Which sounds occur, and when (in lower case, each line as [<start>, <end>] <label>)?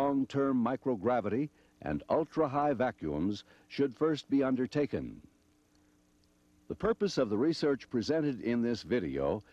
[0.00, 9.52] background noise
[0.01, 1.47] man speaking
[1.50, 1.70] breathing
[1.77, 3.41] man speaking
[3.43, 3.65] breathing
[3.62, 5.11] man speaking
[6.64, 9.42] man speaking